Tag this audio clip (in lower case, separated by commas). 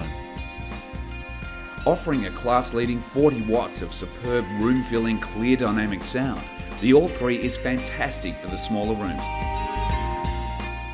speech, music